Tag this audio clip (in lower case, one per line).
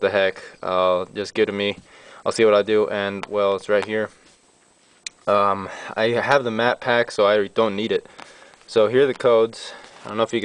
speech